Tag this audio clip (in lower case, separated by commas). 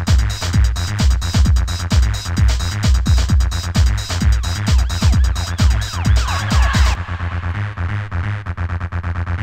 techno, electronic music, music